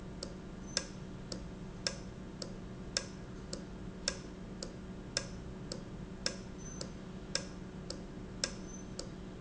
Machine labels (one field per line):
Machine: valve